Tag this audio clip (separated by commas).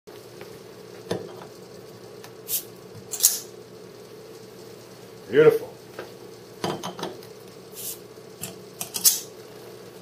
inside a small room, Speech